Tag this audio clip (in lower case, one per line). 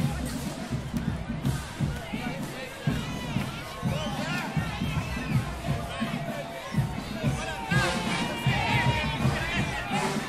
people marching